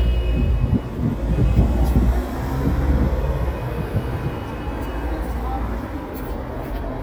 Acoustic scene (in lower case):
street